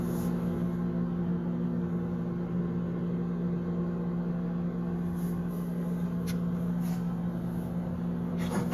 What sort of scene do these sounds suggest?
kitchen